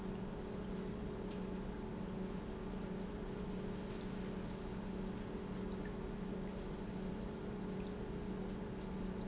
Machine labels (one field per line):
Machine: pump